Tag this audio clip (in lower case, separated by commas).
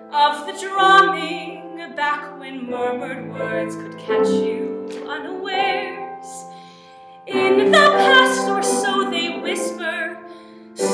female singing, music